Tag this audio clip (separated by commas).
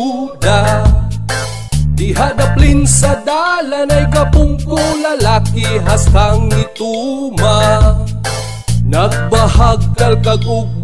Music